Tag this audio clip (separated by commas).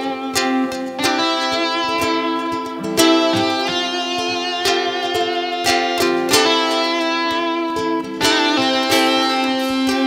Guitar, Musical instrument, Music, Plucked string instrument